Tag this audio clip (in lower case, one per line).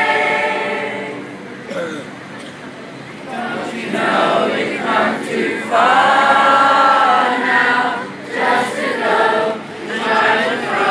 male singing